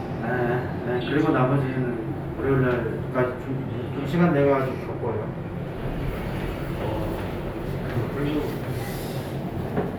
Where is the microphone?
in an elevator